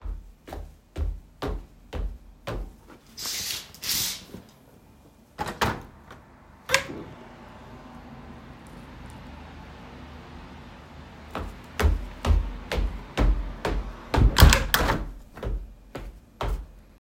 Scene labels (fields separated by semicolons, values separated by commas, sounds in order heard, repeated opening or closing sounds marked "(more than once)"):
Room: bedroom; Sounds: footsteps, window (more than once)